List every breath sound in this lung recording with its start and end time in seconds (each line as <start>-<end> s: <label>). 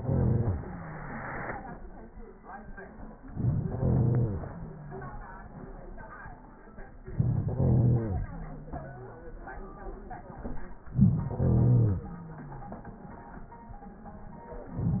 3.27-4.77 s: inhalation
7.00-8.35 s: inhalation
10.80-12.15 s: inhalation